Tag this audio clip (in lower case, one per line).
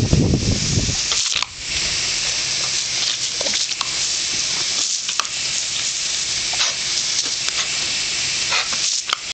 waterfall